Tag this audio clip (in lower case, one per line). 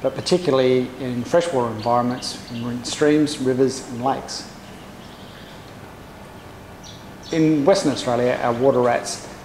speech